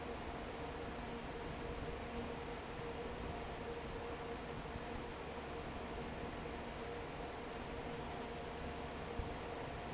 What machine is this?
fan